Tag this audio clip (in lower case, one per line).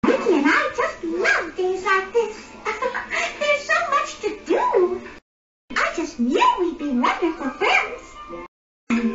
speech